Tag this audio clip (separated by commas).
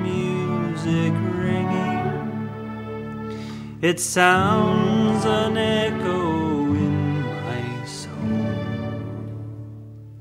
Orchestra, Male singing, Music